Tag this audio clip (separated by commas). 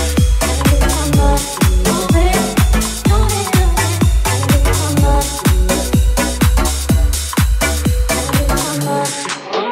Dance music, Music, Disco